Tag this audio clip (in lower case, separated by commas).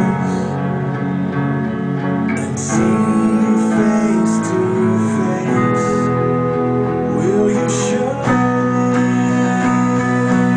strum, guitar, acoustic guitar, electric guitar, music, musical instrument, plucked string instrument